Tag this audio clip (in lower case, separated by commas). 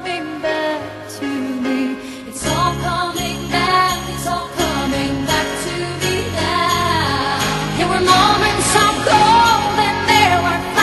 jingle bell